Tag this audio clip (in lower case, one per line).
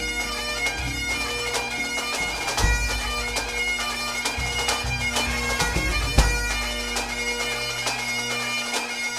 music